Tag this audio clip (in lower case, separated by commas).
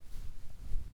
wind